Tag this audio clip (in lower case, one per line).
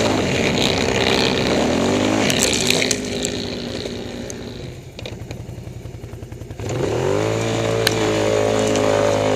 vehicle
scrape